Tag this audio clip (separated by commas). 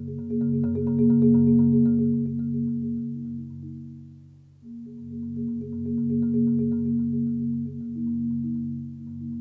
Glockenspiel, Marimba, Mallet percussion, playing marimba